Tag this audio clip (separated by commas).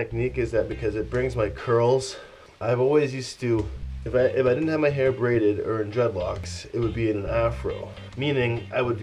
inside a small room, Speech, Music